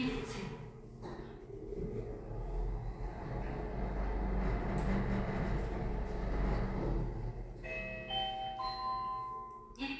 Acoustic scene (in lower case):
elevator